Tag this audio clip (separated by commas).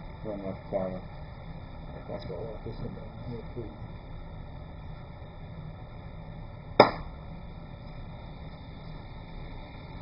Speech